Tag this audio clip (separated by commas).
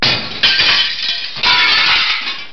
Glass